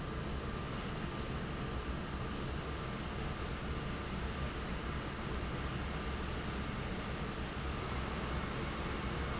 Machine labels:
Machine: fan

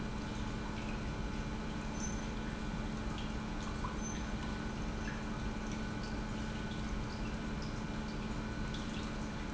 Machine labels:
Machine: pump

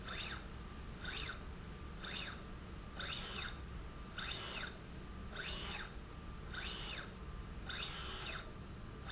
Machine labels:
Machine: slide rail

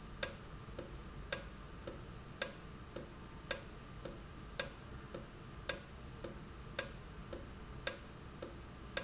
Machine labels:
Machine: valve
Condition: normal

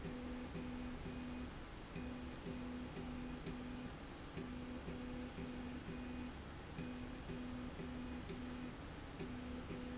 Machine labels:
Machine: slide rail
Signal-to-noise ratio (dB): 6 dB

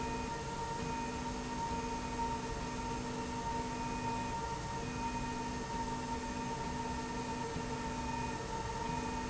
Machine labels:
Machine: slide rail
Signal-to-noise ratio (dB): -6 dB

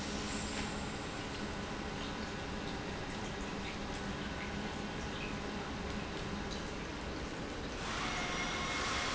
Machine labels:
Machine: pump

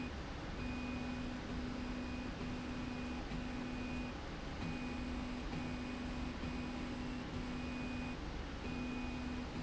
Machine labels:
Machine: slide rail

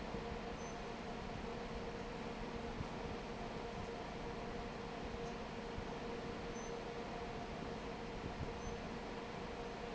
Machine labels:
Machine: fan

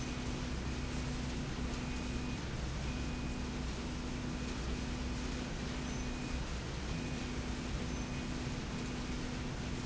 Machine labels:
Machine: slide rail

